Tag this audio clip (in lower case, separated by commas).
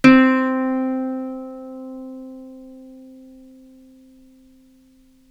musical instrument, music, plucked string instrument